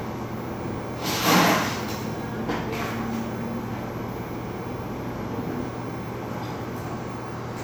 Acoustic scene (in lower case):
cafe